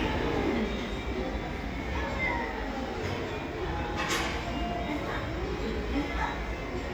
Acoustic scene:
cafe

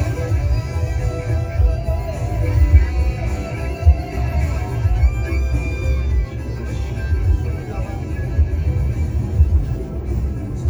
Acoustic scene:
car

